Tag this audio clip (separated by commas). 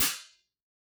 Music, Musical instrument, Cymbal, Hi-hat, Percussion